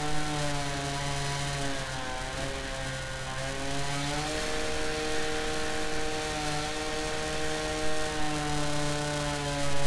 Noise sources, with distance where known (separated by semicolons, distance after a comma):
unidentified powered saw, near